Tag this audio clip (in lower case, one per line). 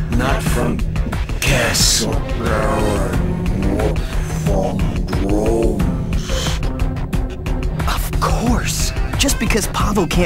music
speech